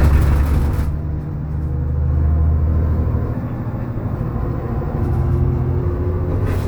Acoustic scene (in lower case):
bus